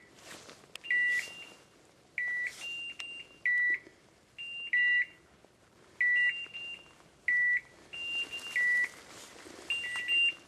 Something is beeping at a constant rate